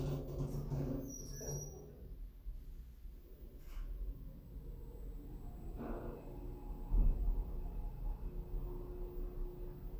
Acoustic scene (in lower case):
elevator